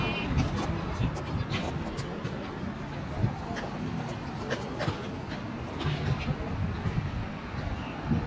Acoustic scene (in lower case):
residential area